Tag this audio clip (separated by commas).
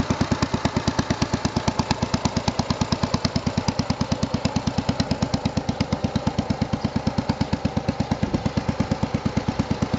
Vehicle, Motorcycle